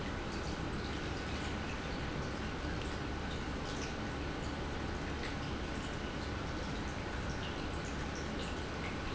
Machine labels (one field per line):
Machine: pump